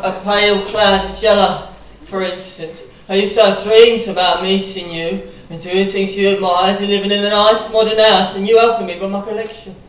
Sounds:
speech, narration

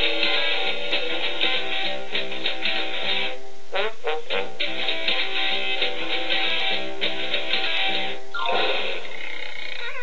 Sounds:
music

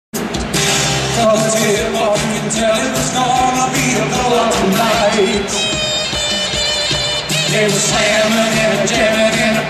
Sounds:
music, inside a public space

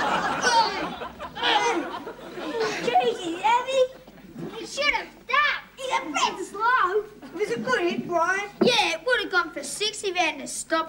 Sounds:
speech, inside a small room

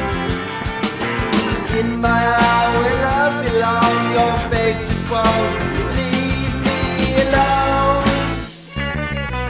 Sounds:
rock music, music

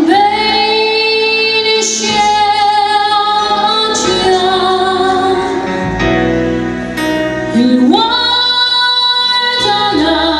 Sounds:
music, female singing

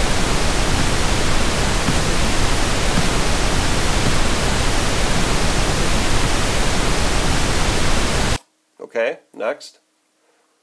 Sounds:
pink noise, speech, inside a small room

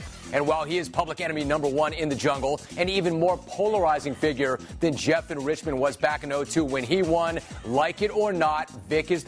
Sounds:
speech, music

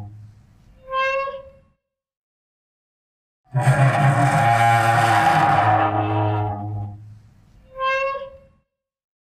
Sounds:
music, didgeridoo

